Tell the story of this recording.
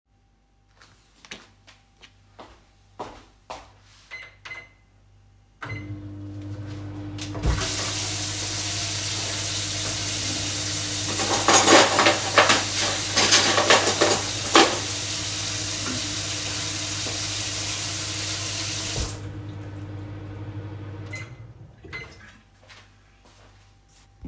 I walked into the kitchen and started the microwave. I immediately turned on the tap and began handling cutlery in the sink. The microwave, running water, and cutlery sounds all overlapped simultaneously for several seconds.